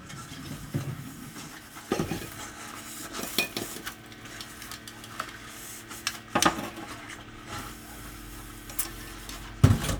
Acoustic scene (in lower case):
kitchen